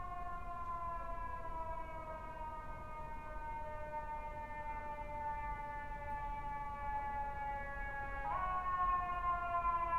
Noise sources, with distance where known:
siren, far

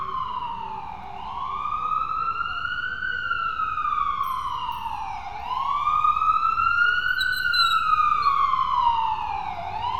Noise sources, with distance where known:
siren, near

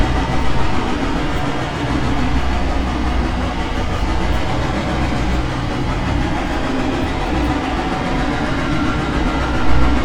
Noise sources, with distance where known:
engine of unclear size, near

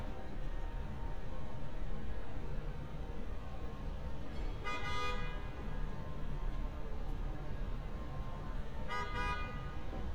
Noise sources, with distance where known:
car horn, near

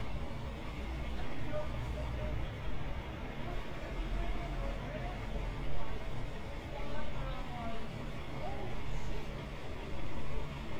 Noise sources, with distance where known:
large-sounding engine, far
unidentified human voice, far

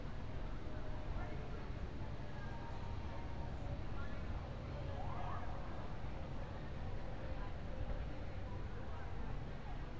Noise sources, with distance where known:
engine of unclear size, far
siren, far
person or small group talking, far

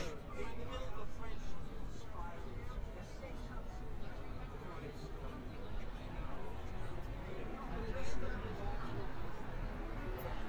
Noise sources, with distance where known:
person or small group talking, near

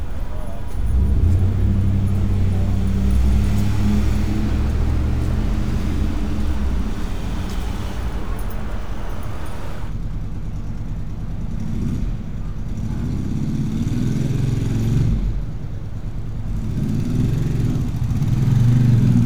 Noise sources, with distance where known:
medium-sounding engine, near

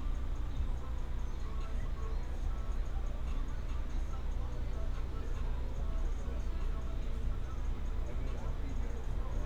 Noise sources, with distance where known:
music from a moving source, far

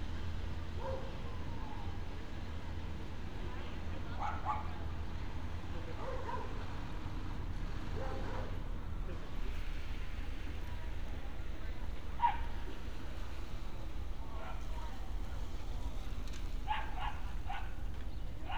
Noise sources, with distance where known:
person or small group talking
dog barking or whining

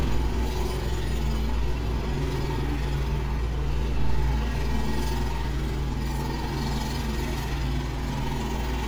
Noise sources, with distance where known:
jackhammer, near

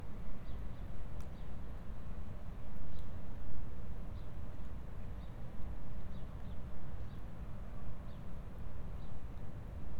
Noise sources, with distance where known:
background noise

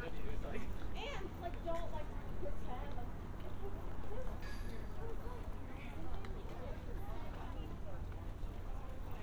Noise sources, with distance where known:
person or small group talking, near

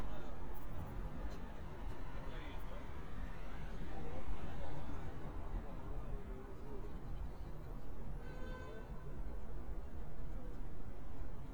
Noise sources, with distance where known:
car horn, far
person or small group talking, far

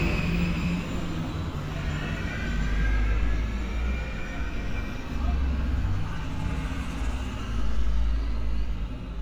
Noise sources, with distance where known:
engine of unclear size

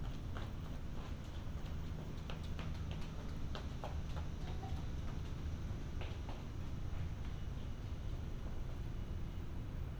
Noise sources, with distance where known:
non-machinery impact

